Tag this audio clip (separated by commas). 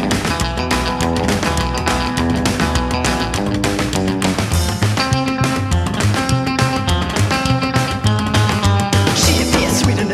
Music